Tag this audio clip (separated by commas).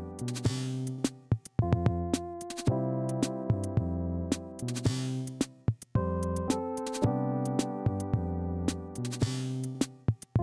Synthesizer, Music, Background music